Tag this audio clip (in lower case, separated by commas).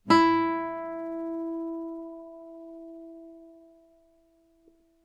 musical instrument, music, plucked string instrument, guitar